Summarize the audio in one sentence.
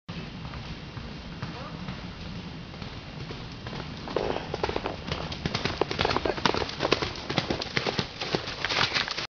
A horse running and clip-clopping